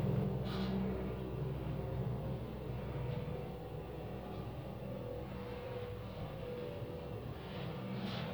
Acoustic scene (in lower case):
elevator